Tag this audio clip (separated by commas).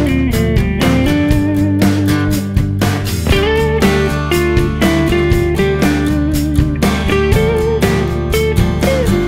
Music